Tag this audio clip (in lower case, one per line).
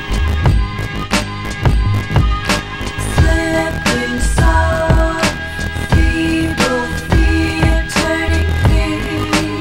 music